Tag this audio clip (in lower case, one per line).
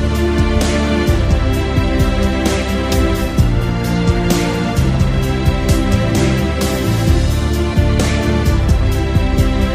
music